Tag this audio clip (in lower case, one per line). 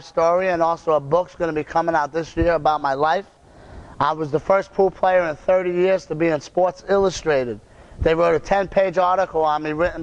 speech